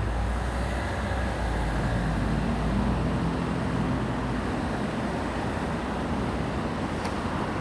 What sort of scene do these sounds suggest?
residential area